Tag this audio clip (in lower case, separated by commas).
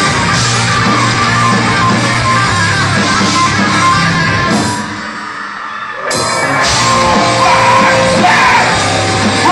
music, inside a large room or hall